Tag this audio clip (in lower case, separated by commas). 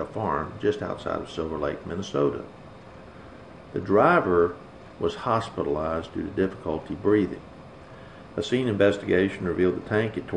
speech